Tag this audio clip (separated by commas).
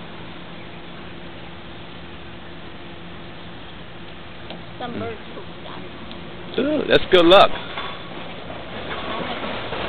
Vehicle, Speech